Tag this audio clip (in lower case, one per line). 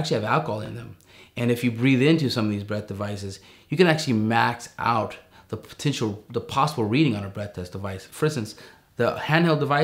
speech